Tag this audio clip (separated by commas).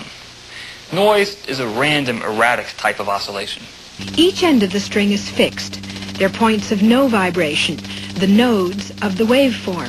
Speech